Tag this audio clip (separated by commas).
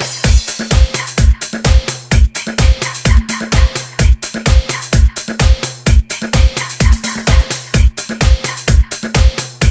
Disco, Music